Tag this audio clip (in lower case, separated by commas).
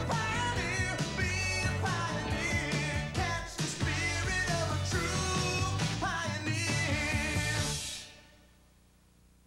music